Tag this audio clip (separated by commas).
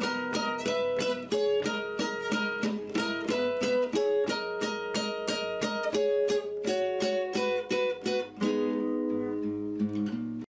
Ukulele, Music